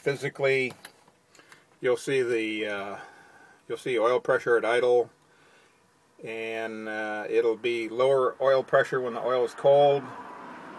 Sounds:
Speech

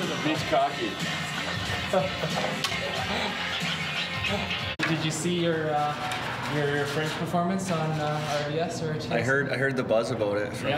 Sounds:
Speech, Music

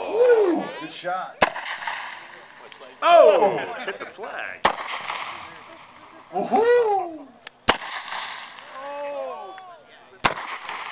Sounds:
Speech

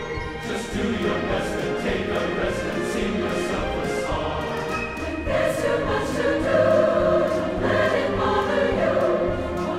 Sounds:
Orchestra, Music

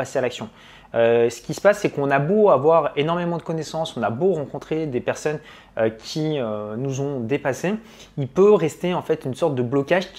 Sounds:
Speech

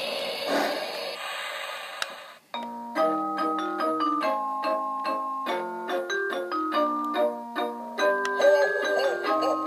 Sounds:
inside a small room, Music, Train

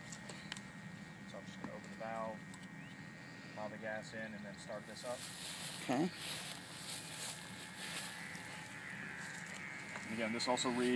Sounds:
outside, rural or natural, Speech

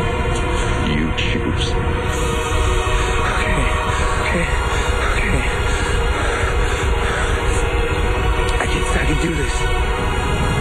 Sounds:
Speech, Music

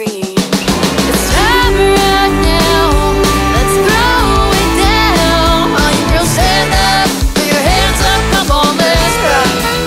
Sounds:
Music, Country

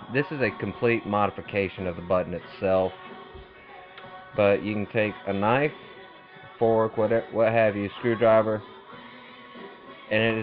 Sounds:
Music, Speech

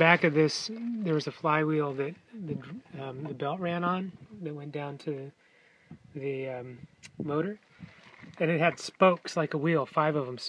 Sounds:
Speech

